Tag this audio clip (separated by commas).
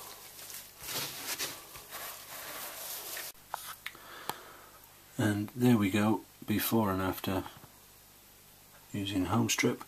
Speech